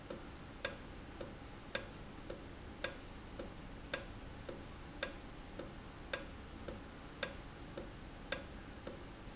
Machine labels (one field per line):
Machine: valve